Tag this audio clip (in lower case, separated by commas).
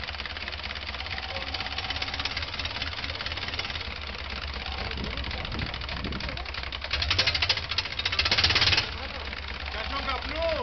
engine, speech, outside, urban or man-made